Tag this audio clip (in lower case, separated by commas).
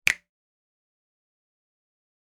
finger snapping, hands